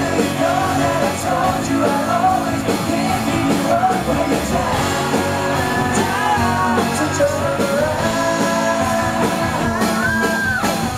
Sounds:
Music

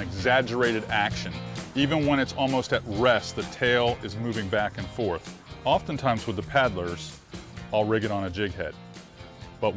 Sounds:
Music, Speech

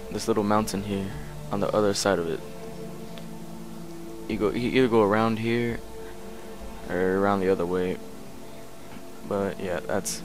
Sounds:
Speech, Music

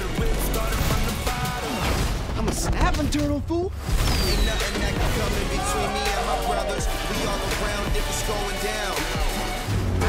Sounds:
Background music, Music, Speech, Soundtrack music

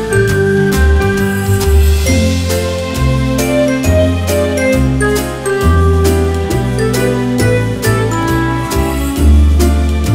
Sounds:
Music

